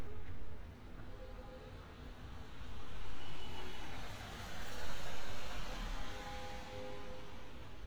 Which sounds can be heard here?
small-sounding engine, car horn